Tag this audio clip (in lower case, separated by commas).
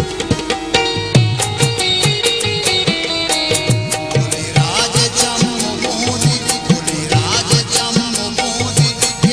independent music, music